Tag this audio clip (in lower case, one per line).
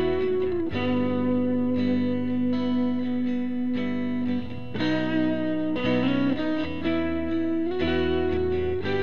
distortion
music
guitar
effects unit